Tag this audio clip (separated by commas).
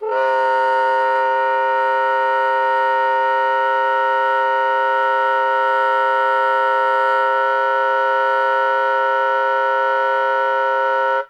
woodwind instrument, Music, Musical instrument